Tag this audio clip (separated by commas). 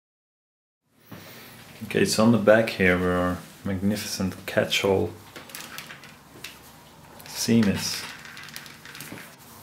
Speech